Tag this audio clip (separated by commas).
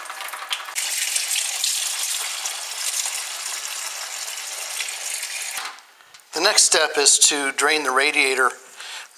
Water